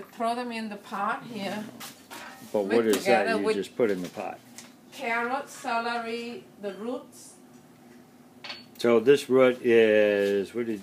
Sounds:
speech

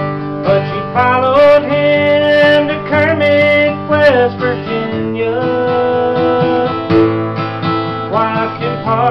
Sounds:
male singing, music

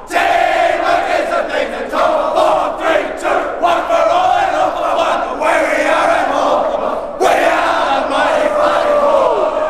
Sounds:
crowd

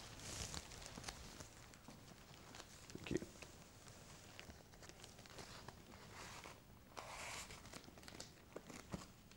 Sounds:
speech, inside a small room, tearing

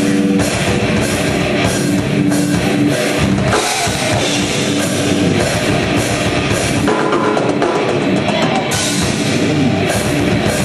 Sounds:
music

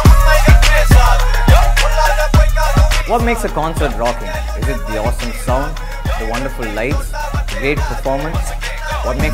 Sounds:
speech, music

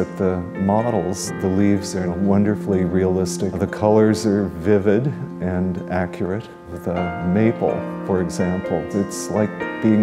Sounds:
music, speech

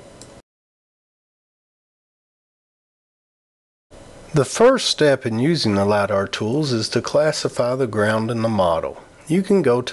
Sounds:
speech

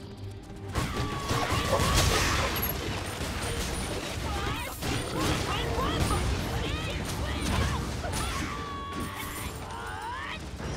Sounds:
speech, music

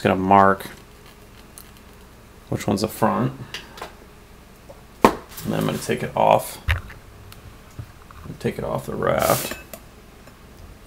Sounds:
speech

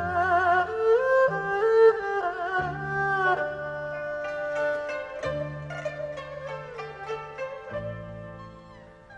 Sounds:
playing erhu

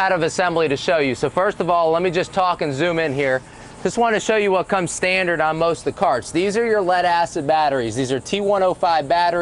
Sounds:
speech

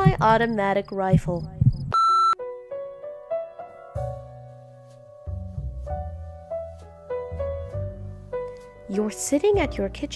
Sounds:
music, speech, new-age music

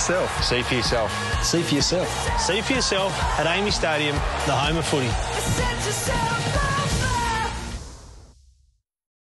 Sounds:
music, speech

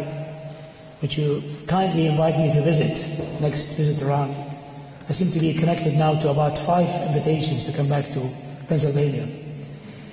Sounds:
man speaking, speech

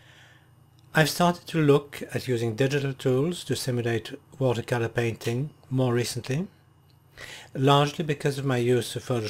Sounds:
speech

